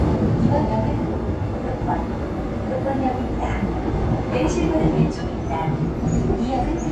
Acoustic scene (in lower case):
subway train